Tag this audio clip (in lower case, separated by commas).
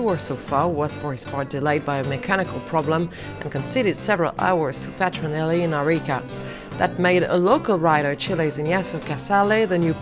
music, speech